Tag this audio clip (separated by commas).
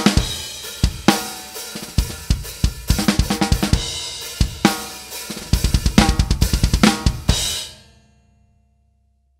playing bass drum